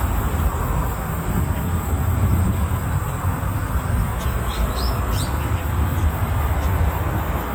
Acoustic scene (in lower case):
park